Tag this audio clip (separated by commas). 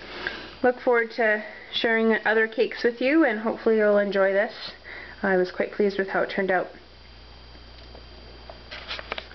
inside a small room, Speech